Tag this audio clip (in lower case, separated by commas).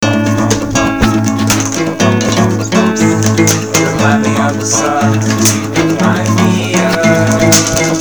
acoustic guitar, musical instrument, guitar, plucked string instrument, music, human voice